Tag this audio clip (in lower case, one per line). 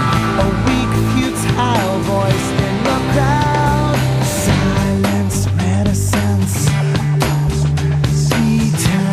music